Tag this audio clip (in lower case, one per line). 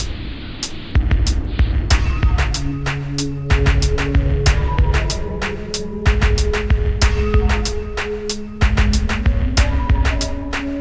music